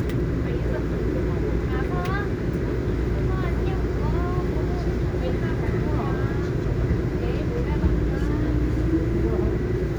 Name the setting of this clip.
subway train